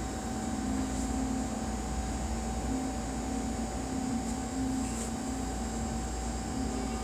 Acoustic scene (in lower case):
cafe